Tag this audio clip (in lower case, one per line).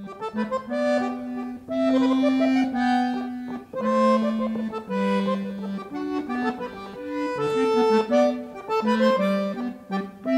music
classical music